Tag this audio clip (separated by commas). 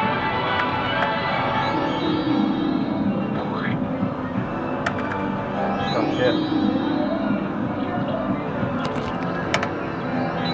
Speech, Music